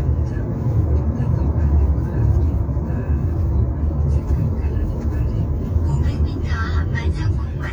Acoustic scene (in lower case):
car